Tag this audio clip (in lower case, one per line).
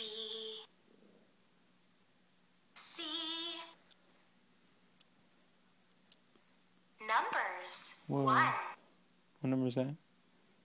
speech